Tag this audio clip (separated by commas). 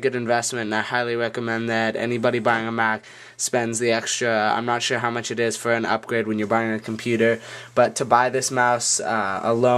Speech